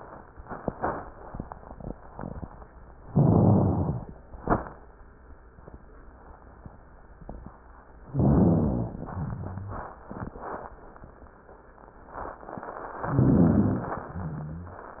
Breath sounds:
3.06-4.10 s: inhalation
3.06-4.10 s: rhonchi
8.08-8.98 s: inhalation
8.08-8.98 s: rhonchi
9.02-9.92 s: exhalation
9.02-9.92 s: rhonchi
13.08-14.00 s: inhalation
13.08-14.00 s: rhonchi
14.02-14.94 s: exhalation
14.02-14.94 s: rhonchi

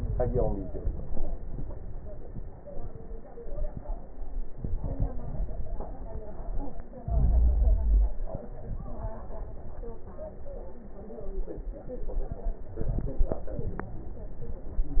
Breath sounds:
7.05-8.18 s: inhalation
12.81-13.95 s: crackles

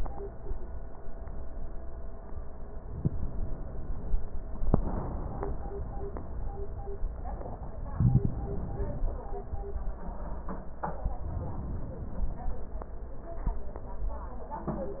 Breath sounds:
2.87-4.26 s: inhalation
11.27-12.66 s: inhalation

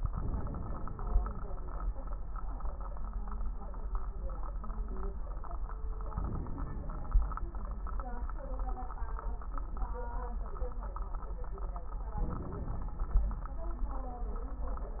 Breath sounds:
0.09-1.00 s: inhalation
0.09-1.00 s: crackles
6.14-7.18 s: inhalation
6.14-7.18 s: crackles
12.20-13.06 s: inhalation
12.20-13.06 s: crackles

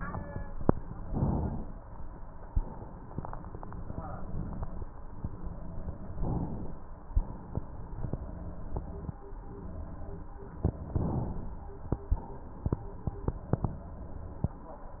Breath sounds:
1.05-1.95 s: inhalation
1.95-4.81 s: exhalation
6.21-7.21 s: inhalation
7.21-9.15 s: exhalation
10.89-12.15 s: inhalation
12.15-14.41 s: exhalation

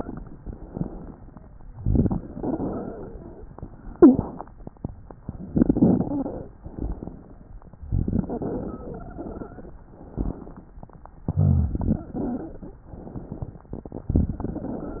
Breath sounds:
0.40-1.37 s: inhalation
1.73-2.24 s: exhalation
1.73-2.24 s: rhonchi
2.30-3.46 s: wheeze
3.89-4.42 s: wheeze
5.48-6.45 s: wheeze
6.62-7.59 s: inhalation
7.84-8.33 s: exhalation
7.84-8.33 s: rhonchi
8.25-9.77 s: wheeze
9.89-10.74 s: inhalation
11.27-11.77 s: exhalation
11.27-11.77 s: rhonchi
11.76-12.79 s: wheeze
12.88-13.74 s: inhalation

